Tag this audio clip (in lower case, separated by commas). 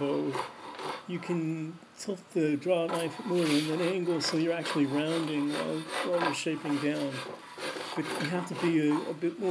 wood, rub, filing (rasp)